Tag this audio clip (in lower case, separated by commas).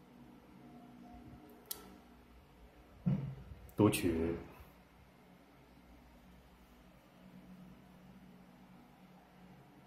speech